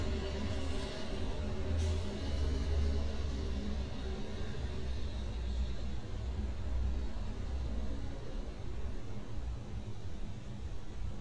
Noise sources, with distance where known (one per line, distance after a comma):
engine of unclear size